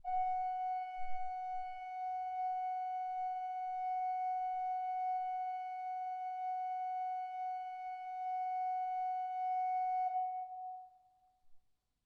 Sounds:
music
organ
musical instrument
keyboard (musical)

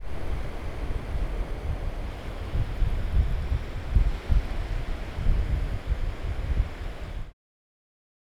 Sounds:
surf
water
ocean

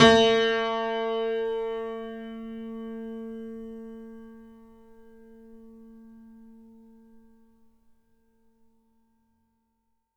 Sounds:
piano
keyboard (musical)
musical instrument
music

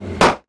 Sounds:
vehicle

